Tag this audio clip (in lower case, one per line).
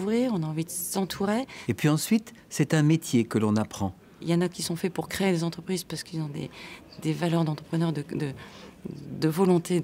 speech